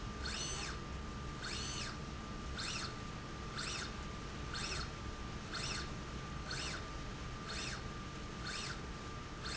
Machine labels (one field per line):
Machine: slide rail